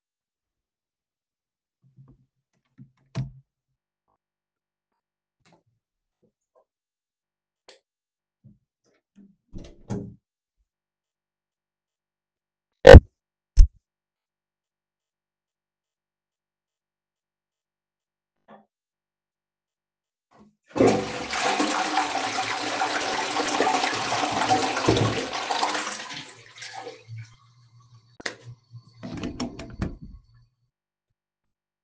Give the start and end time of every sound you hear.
[1.94, 3.94] door
[7.58, 8.45] light switch
[8.76, 10.36] door
[20.24, 27.77] toilet flushing
[28.05, 28.70] light switch
[28.86, 31.41] door

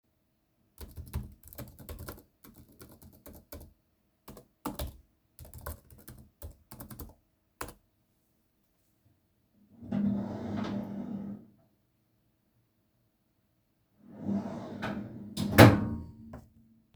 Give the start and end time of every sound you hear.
[0.70, 8.07] keyboard typing
[9.70, 11.56] wardrobe or drawer
[14.13, 16.11] wardrobe or drawer

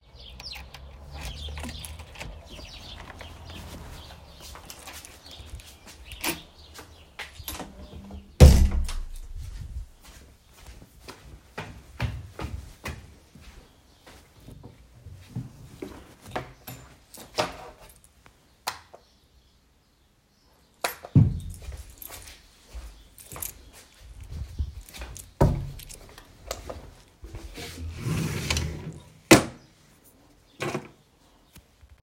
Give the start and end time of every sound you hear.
[0.17, 3.35] door
[4.80, 6.71] footsteps
[6.46, 6.96] door
[7.75, 7.83] keys
[8.31, 9.65] door
[10.50, 15.78] footsteps
[17.15, 18.27] keys
[20.77, 27.14] keys
[22.08, 27.59] footsteps
[28.29, 29.09] wardrobe or drawer
[28.75, 29.21] keys

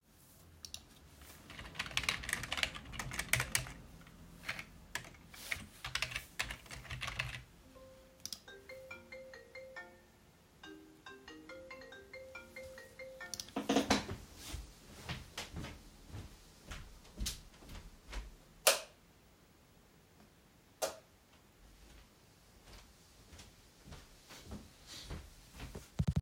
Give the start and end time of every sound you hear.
[1.34, 7.52] keyboard typing
[8.35, 13.27] phone ringing
[14.31, 18.34] footsteps
[18.61, 19.02] light switch
[20.77, 20.98] light switch
[22.68, 26.20] footsteps

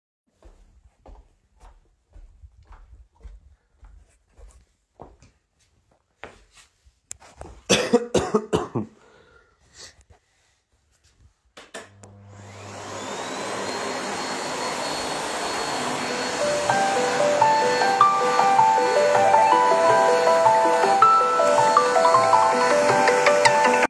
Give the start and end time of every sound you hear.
[0.01, 7.55] footsteps
[11.51, 23.89] vacuum cleaner
[16.06, 23.89] phone ringing

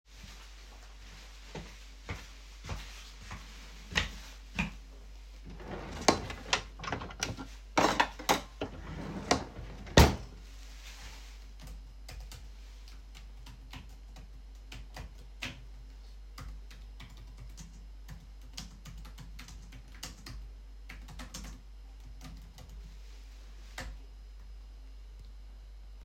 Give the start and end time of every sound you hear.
[0.00, 5.38] footsteps
[5.33, 11.07] wardrobe or drawer
[11.25, 24.92] keyboard typing

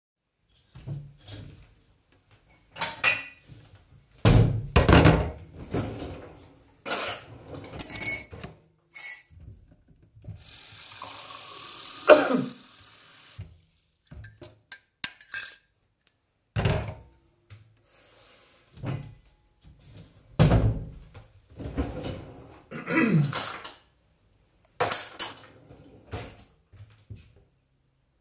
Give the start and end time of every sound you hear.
[0.47, 1.67] door
[0.66, 1.72] wardrobe or drawer
[2.60, 3.59] cutlery and dishes
[4.07, 5.34] door
[4.12, 4.68] wardrobe or drawer
[4.68, 5.37] cutlery and dishes
[5.46, 6.62] wardrobe or drawer
[6.71, 9.47] cutlery and dishes
[7.40, 8.55] wardrobe or drawer
[10.09, 13.73] running water
[14.07, 17.26] cutlery and dishes
[17.45, 17.91] footsteps
[17.68, 19.38] door
[18.69, 19.50] wardrobe or drawer
[20.00, 21.23] door
[20.28, 24.03] wardrobe or drawer
[23.25, 24.07] cutlery and dishes
[24.68, 25.77] cutlery and dishes
[26.02, 26.71] wardrobe or drawer
[26.02, 26.64] cutlery and dishes
[26.71, 27.49] footsteps

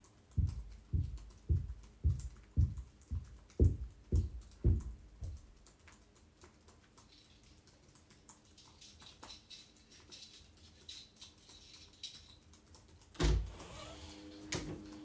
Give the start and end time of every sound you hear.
[0.23, 15.04] keyboard typing
[0.36, 5.48] footsteps
[8.78, 12.37] keys
[13.15, 14.85] door

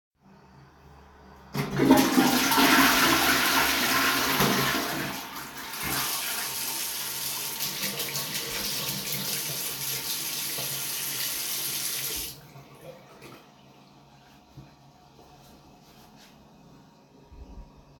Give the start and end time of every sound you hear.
[1.51, 6.11] toilet flushing
[5.29, 12.37] running water

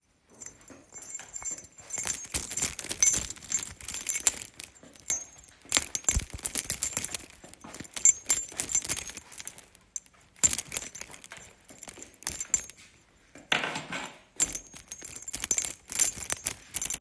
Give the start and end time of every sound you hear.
[0.00, 16.98] keys

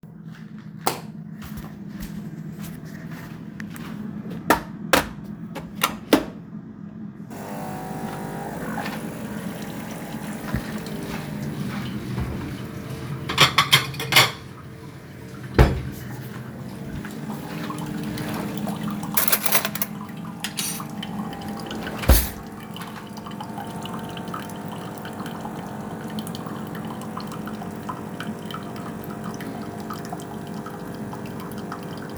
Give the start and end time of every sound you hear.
[0.70, 4.51] light switch
[0.96, 4.54] footsteps
[4.58, 5.05] light switch
[5.57, 6.35] light switch
[7.38, 32.17] coffee machine
[8.71, 13.25] running water
[13.11, 14.59] cutlery and dishes
[15.51, 15.89] wardrobe or drawer
[16.32, 32.17] running water
[19.07, 21.04] cutlery and dishes
[22.02, 22.37] wardrobe or drawer

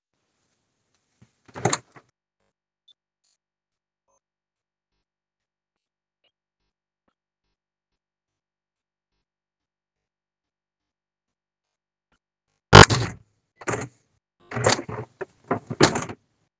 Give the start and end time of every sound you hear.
[1.49, 1.91] window
[12.86, 16.21] window

